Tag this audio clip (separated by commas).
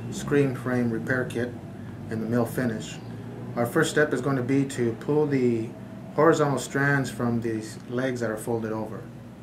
Speech